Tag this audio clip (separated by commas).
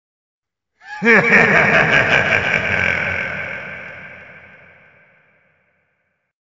Human voice, Laughter